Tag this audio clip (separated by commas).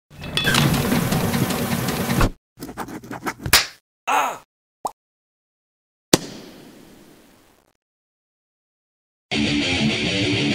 Sound effect